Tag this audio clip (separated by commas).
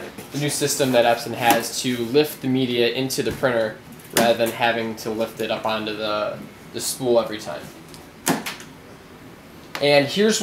Speech